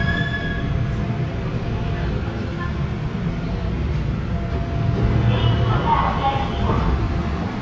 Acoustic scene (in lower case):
subway train